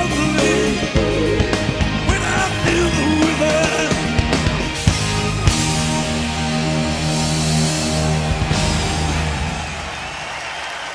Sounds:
Singing

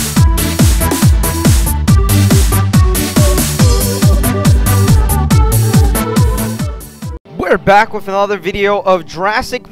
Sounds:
Speech, Music, Techno, Trance music

